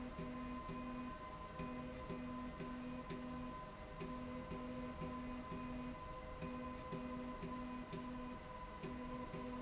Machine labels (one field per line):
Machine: slide rail